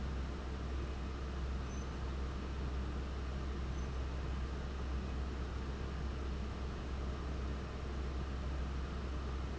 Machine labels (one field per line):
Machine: fan